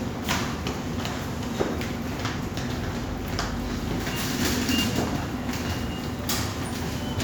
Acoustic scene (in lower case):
subway station